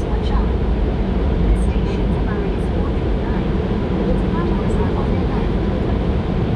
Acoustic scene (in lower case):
subway train